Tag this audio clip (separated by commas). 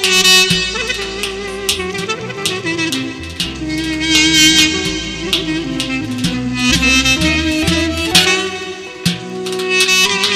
Music, Musical instrument, Clarinet, Wind instrument